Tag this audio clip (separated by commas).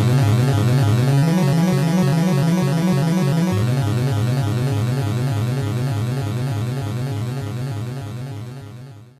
Video game music, Music